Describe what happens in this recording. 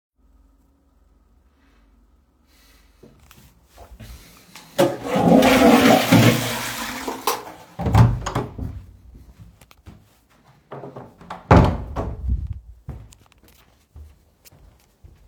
I flush the toilet turn off the light and open the door I close it and walk to the bathroom